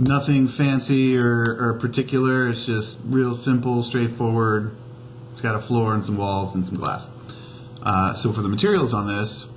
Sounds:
Speech

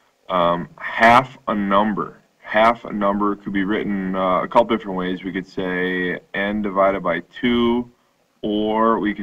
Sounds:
Speech

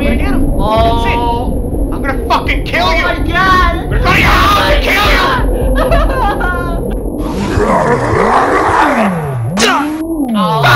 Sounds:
Speech

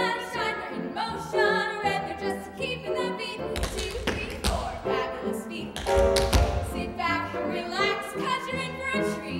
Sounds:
Music, Tap

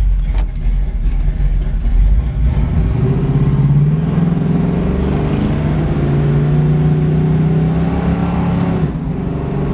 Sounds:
Vehicle, Motor vehicle (road), Car

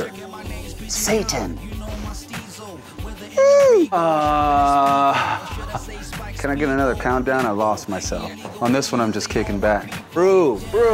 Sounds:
Music, Speech

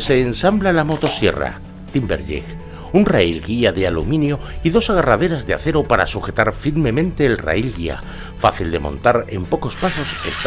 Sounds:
Speech, Music

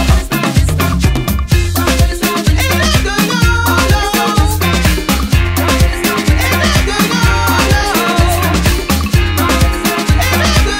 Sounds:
Music, Singing

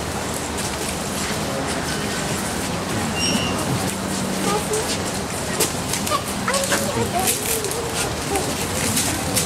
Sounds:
Children playing, Speech

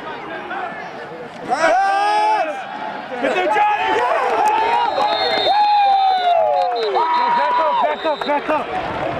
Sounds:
Crowd, Cheering

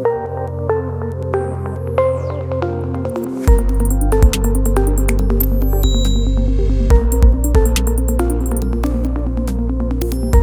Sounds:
Music

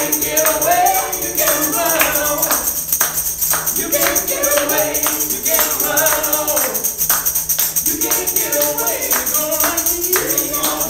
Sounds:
Music

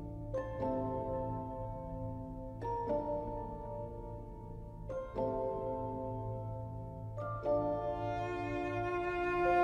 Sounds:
Music

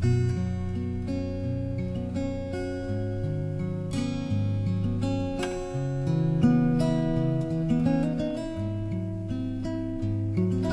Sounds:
Music, Acoustic guitar, Plucked string instrument, Guitar, Musical instrument

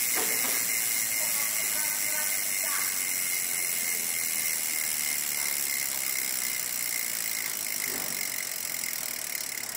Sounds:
Speech

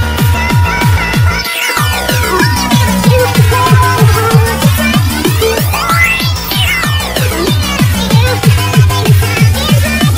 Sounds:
Music

